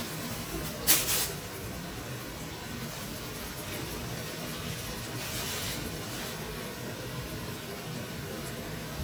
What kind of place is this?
kitchen